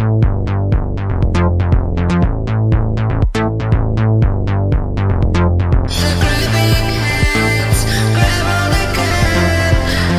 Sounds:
Drum machine

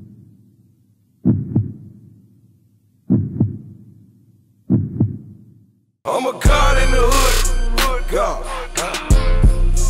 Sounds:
Throbbing

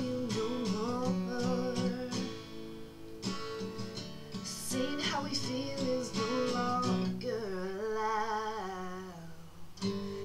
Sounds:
Music

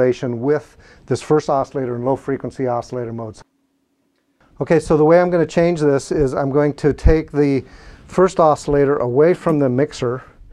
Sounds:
Speech

